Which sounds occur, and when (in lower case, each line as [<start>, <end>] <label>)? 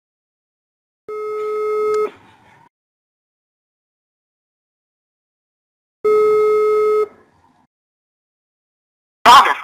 [1.05, 2.06] busy signal
[1.32, 1.47] generic impact sounds
[1.89, 1.94] generic impact sounds
[2.09, 2.65] human voice
[6.02, 7.08] busy signal
[6.02, 7.64] mechanisms
[7.30, 7.57] generic impact sounds
[9.22, 9.63] man speaking